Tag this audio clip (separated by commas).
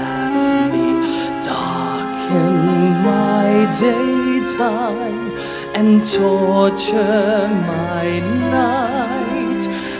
Male singing, Music